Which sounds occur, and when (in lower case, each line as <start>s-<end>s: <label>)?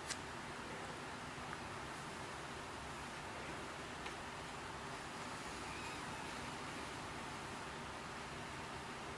0.0s-9.1s: mechanisms